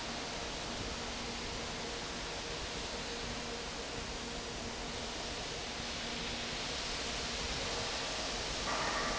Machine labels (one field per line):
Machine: fan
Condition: normal